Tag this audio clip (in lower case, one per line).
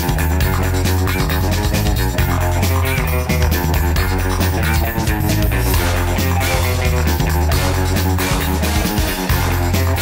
music